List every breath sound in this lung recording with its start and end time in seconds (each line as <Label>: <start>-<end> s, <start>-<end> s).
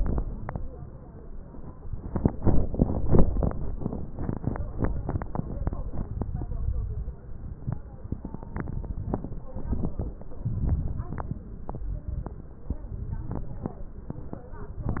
Inhalation: 6.40-7.12 s, 10.45-11.17 s, 12.98-13.74 s